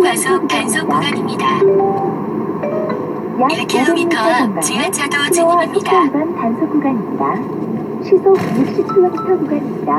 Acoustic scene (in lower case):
car